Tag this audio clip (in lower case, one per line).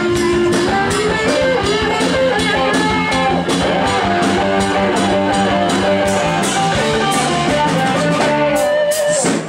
rhythm and blues
country
music